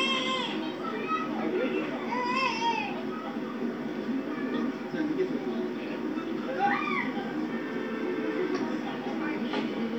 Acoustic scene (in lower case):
park